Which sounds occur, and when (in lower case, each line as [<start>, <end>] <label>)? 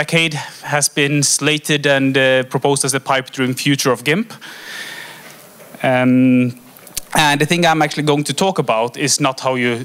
[0.00, 0.25] man speaking
[0.00, 9.84] mechanisms
[0.25, 0.60] breathing
[0.58, 4.26] man speaking
[4.27, 5.37] breathing
[5.56, 5.80] tick
[5.80, 6.54] man speaking
[6.46, 6.56] tick
[6.71, 7.09] generic impact sounds
[7.10, 9.84] man speaking